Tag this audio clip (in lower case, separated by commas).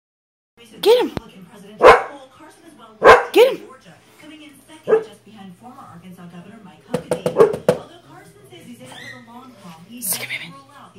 animal, dog, bark, domestic animals, speech